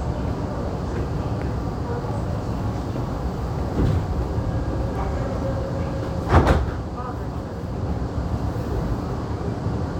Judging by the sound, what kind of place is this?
subway train